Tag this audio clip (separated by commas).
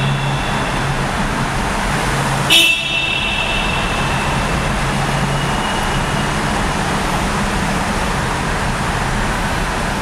car horn